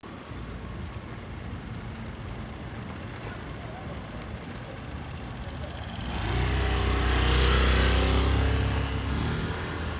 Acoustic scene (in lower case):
residential area